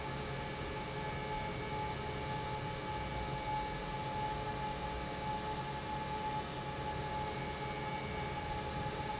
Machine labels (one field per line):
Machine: pump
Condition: normal